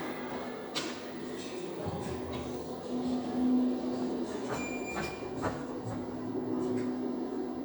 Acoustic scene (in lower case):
elevator